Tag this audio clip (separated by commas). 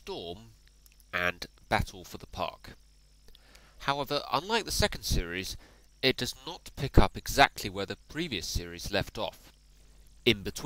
Speech